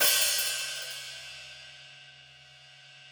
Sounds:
cymbal, percussion, music, musical instrument, hi-hat

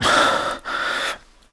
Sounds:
breathing, respiratory sounds

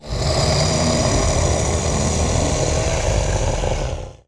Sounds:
animal, growling

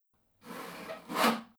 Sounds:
sawing, tools

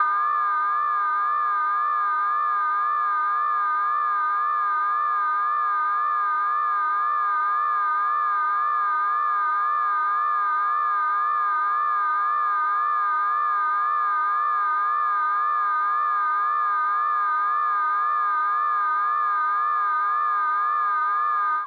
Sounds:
alarm

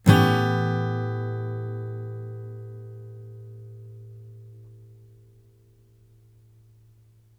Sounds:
plucked string instrument, guitar, musical instrument, music, acoustic guitar, strum

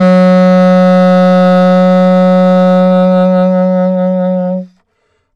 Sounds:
musical instrument, music, woodwind instrument

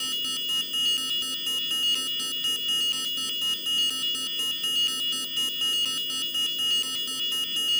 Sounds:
alarm

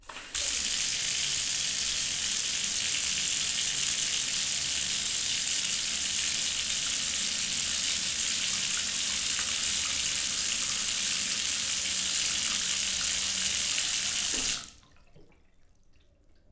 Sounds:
home sounds, bathtub (filling or washing)

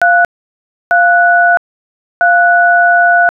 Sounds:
alarm, telephone

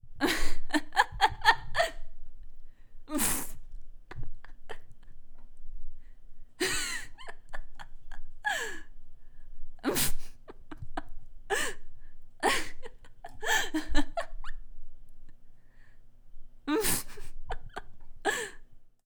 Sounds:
giggle, human voice, laughter

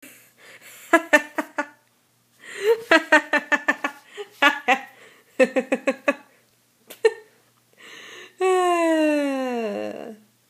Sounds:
laughter, human voice

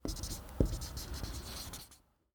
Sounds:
domestic sounds, writing

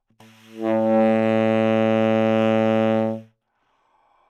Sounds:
music, woodwind instrument, musical instrument

